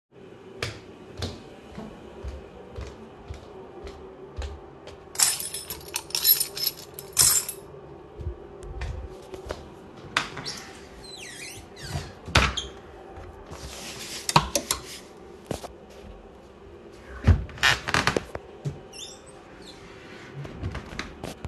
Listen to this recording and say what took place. I walked, put my keys down, then i walked to the wardrobe, opened it, hung up clothing and closed it again.